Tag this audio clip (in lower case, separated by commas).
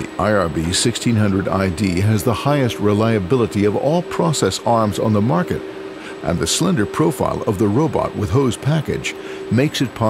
arc welding